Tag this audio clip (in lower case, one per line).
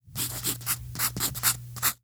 domestic sounds
writing